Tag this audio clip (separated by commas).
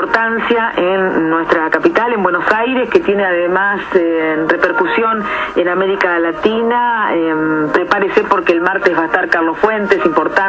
Speech, Radio